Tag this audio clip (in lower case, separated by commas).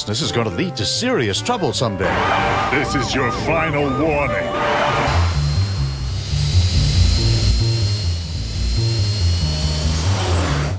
speech, music